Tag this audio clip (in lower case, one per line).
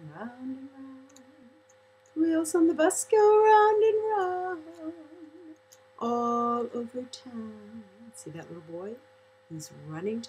speech